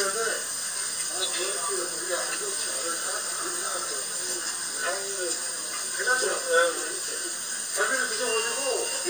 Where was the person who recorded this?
in a restaurant